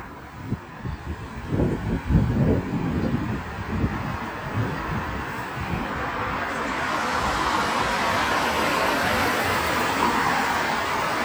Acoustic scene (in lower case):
street